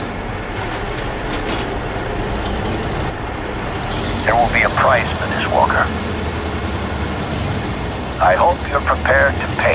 Many large machines running, a voice over a radio while large engines go by and shooting is going on in the background far away